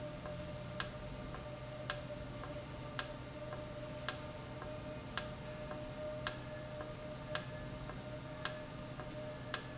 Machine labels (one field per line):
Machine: valve